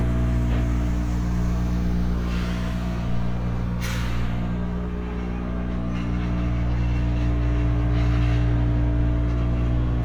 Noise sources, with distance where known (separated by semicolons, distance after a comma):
unidentified impact machinery, near